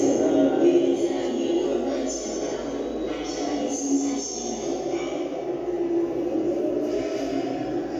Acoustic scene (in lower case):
subway station